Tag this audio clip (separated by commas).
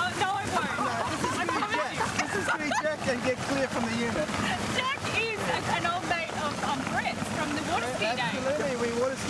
Speech